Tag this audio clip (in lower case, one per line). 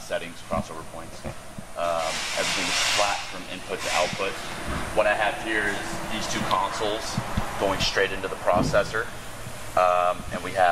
speech